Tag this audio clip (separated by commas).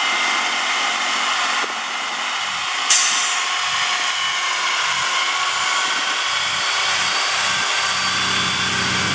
Vehicle, Stream